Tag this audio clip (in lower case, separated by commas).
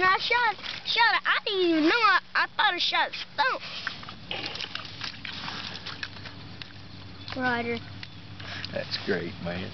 speech